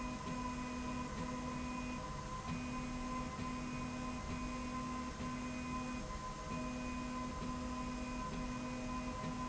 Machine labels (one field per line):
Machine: slide rail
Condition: normal